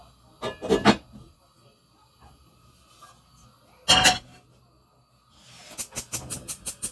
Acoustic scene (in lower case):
kitchen